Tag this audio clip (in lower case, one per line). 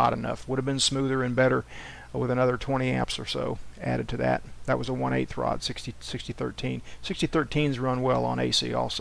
arc welding